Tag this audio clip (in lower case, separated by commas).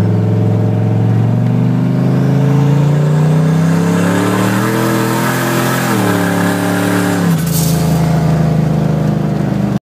vehicle, truck